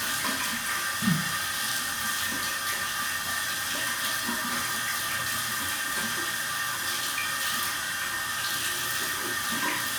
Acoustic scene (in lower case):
restroom